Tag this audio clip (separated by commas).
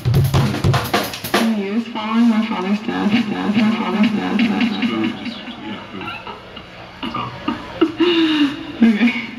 Pop music, Rhythm and blues, Speech, Jazz, Music